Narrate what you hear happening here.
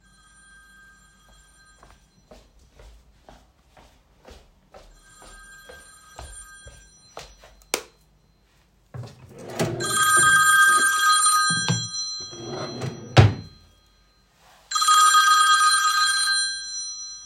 I was situated in the living room when my dad's phone rang.I walked to the bedroom, turned the light on, opened and shuffled through the drawer and took the phone.